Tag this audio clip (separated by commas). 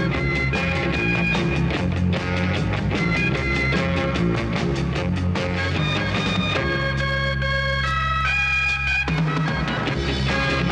Music